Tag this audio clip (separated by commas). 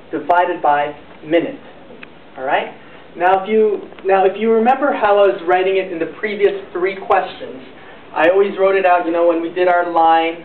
Speech